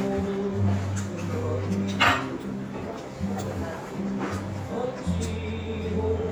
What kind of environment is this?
restaurant